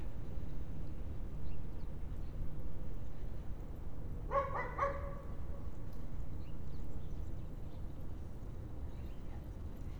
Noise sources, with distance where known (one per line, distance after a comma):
dog barking or whining